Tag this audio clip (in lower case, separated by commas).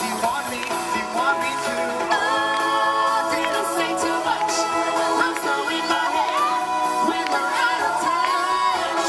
music, rhythm and blues, singing